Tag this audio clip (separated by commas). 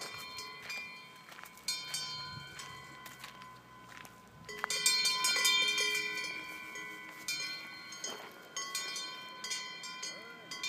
cattle